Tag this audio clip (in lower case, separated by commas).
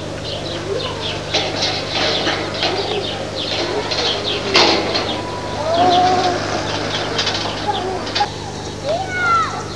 bird